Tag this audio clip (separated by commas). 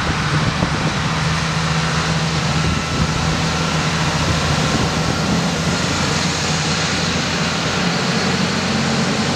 Vehicle